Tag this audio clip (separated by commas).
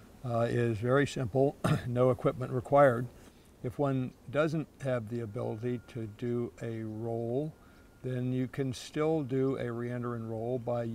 Speech